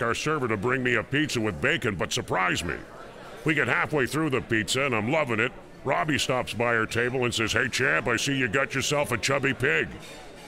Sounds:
speech

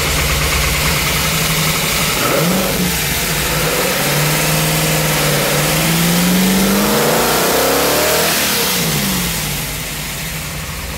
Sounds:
medium engine (mid frequency), engine, car, motor vehicle (road), vehicle

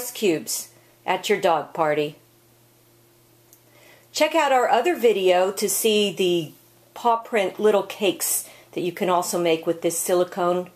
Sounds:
speech

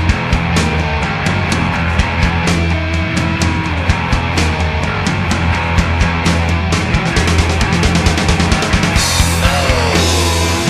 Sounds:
punk rock, music

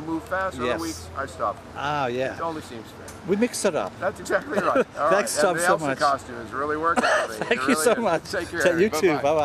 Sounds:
speech

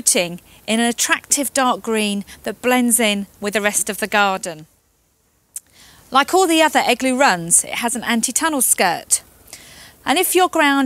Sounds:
speech

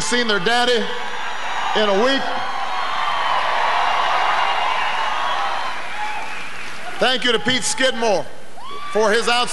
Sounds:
narration, man speaking, speech

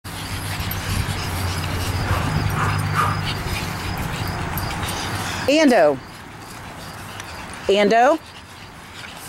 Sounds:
animal, speech, dog, domestic animals

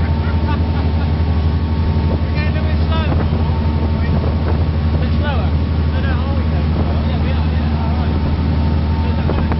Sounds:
wind noise (microphone), speedboat, water vehicle, wind, ocean, surf

